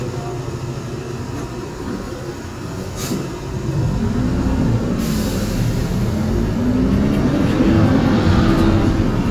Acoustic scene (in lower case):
bus